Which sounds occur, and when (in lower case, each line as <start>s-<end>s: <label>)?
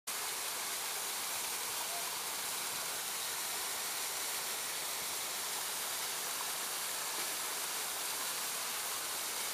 0.0s-9.5s: stream